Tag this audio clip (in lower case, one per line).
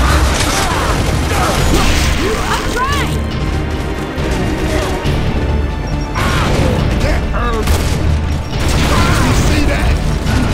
speech
music